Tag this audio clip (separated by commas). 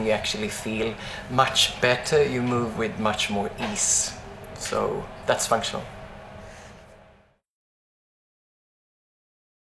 Speech